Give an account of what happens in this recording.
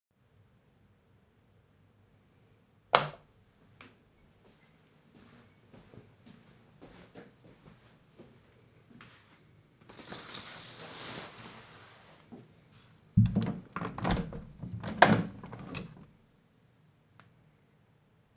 I turned on the light, walked to the window, slide the curtains and opened the window.